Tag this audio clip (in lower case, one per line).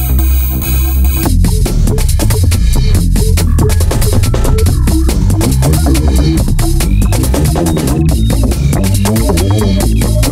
music
sampler